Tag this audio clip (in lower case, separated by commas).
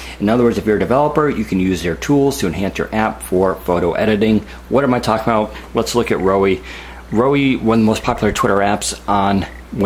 speech